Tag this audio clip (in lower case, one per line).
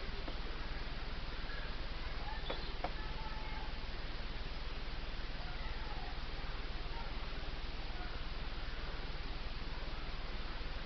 outside, rural or natural
animal
speech